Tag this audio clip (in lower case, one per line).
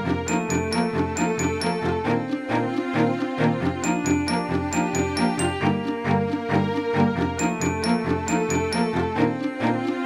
music